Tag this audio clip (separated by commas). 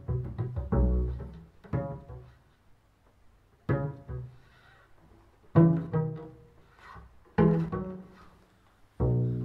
playing double bass